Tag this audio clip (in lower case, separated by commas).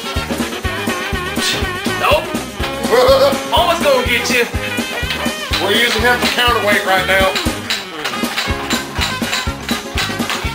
speech, music